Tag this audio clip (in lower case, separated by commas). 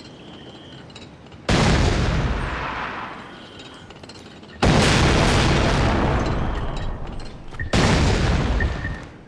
boom